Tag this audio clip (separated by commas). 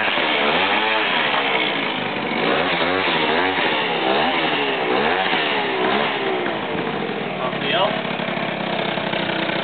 Speech